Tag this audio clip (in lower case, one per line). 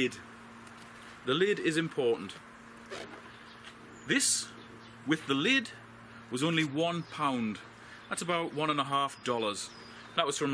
speech